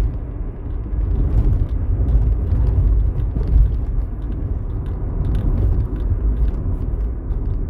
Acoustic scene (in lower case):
car